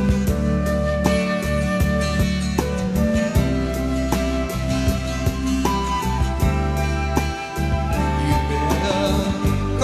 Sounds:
music, country

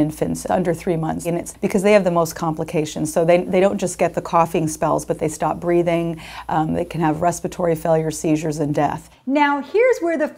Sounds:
speech

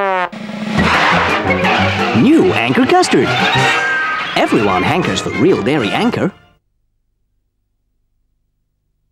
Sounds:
speech, music

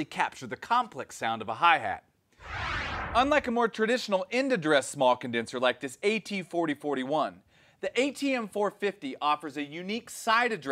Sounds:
speech

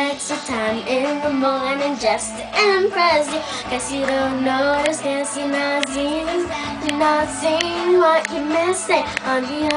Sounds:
female singing, music, child singing

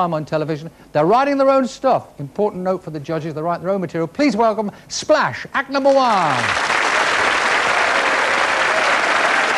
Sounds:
speech

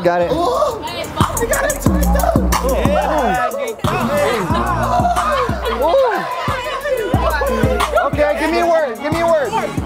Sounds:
rapping

